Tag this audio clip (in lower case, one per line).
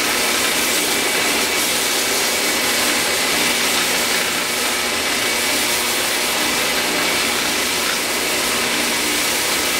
rub